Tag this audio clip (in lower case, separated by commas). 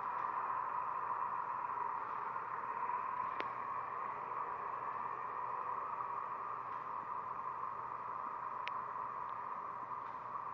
vehicle, bus